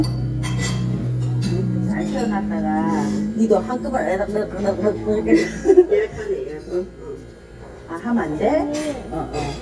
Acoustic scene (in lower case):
crowded indoor space